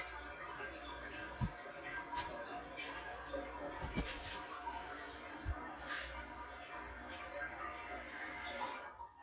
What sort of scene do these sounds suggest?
restroom